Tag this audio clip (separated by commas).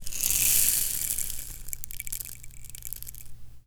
Musical instrument, Rattle (instrument), Music, Percussion